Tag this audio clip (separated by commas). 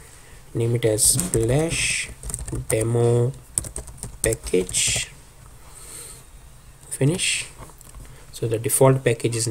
Speech